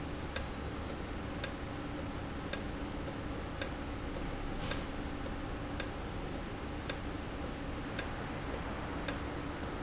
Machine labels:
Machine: valve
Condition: normal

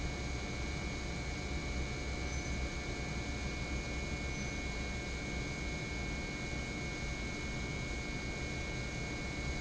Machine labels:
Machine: pump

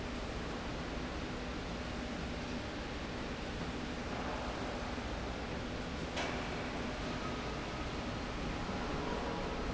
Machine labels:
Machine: slide rail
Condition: normal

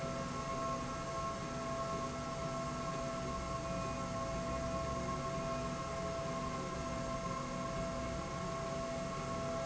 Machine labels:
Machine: slide rail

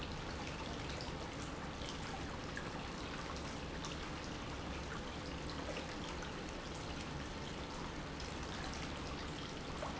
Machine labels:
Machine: pump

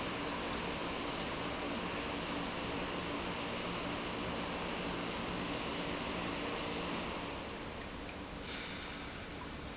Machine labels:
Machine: pump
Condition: normal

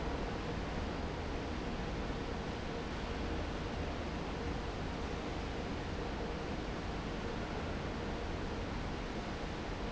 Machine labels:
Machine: fan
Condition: normal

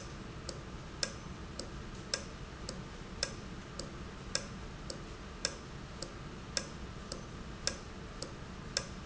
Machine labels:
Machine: valve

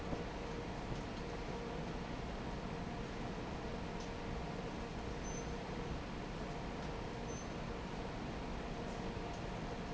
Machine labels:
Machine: fan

